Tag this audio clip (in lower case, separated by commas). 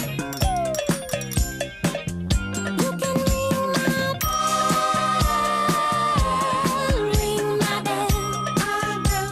music, music for children